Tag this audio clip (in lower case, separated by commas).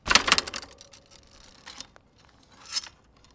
bicycle, vehicle